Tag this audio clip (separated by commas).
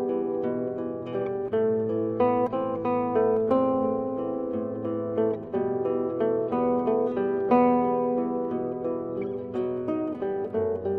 Plucked string instrument, Strum, Music, Guitar, Musical instrument